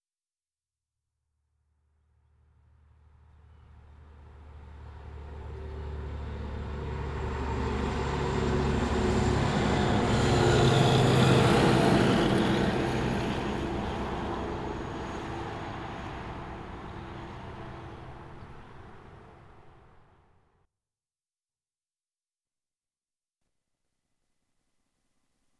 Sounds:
Vehicle

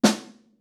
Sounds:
Musical instrument, Snare drum, Music, Drum, Percussion

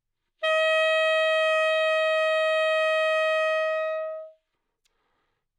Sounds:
woodwind instrument, Musical instrument, Music

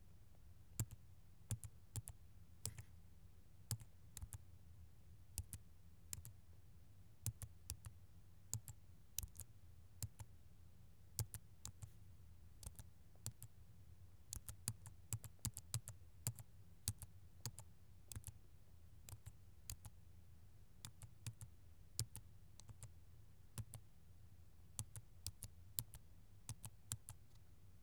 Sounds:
Typing, Domestic sounds

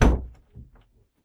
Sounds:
Door, Slam, Knock, Domestic sounds

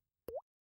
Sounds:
Liquid, Water, Drip, Raindrop, Rain

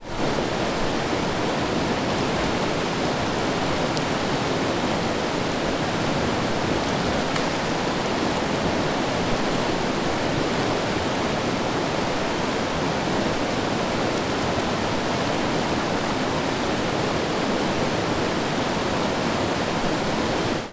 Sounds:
Water, Stream

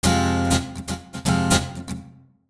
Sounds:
Guitar, Plucked string instrument, Music, Musical instrument

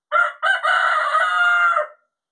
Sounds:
livestock, Animal, Fowl, Chicken

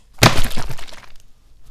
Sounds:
Liquid, Splash

